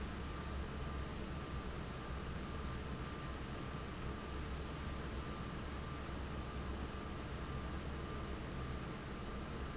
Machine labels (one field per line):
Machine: fan